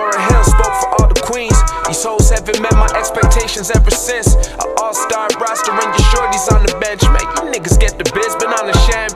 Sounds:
music

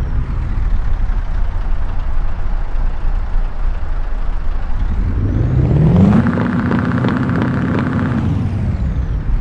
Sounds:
vehicle
truck

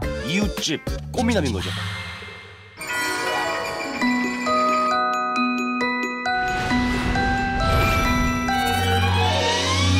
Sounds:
glockenspiel

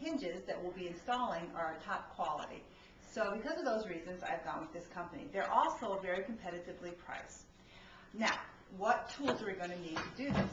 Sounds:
speech

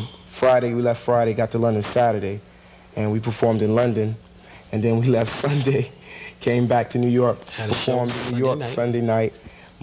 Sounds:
speech

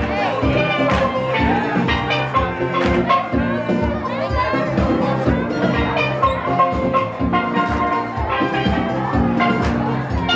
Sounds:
music
crowd
steelpan
drum

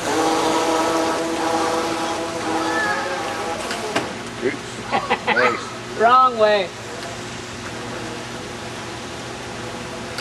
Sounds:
speech

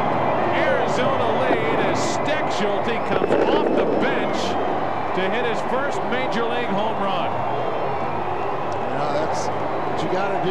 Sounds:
speech

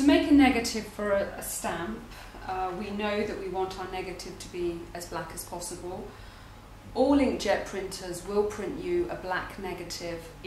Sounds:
speech

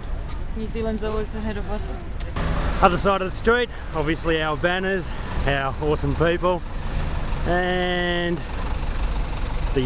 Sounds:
speech
vehicle
idling

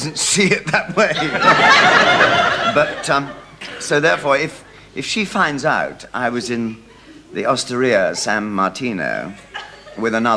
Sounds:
speech

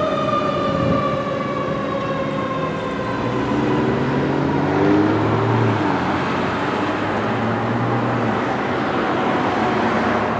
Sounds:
fire truck siren

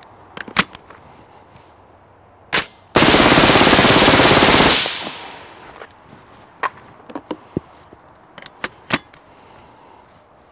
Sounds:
machine gun shooting

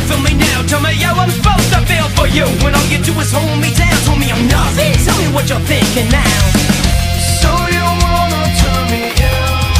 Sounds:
music

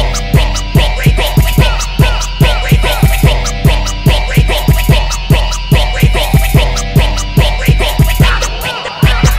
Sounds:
progressive rock
music
rock and roll
punk rock

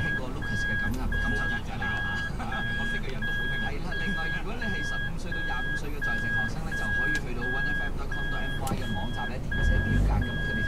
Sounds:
speech
vehicle
car

